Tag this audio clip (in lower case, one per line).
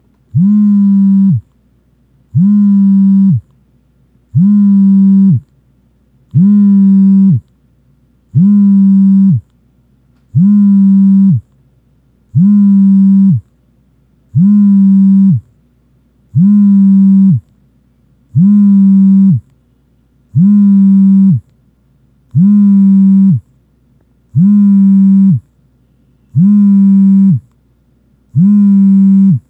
alarm
telephone